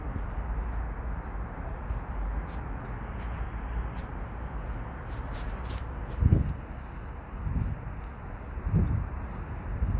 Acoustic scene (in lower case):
residential area